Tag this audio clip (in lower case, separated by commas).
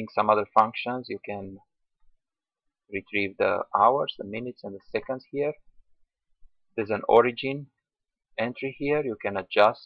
speech